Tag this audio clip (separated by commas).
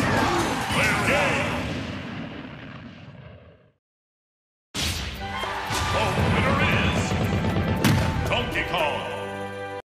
thwack